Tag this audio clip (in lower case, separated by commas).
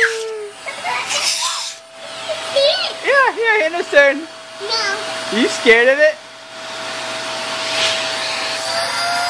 speech, vacuum cleaner, kid speaking, inside a small room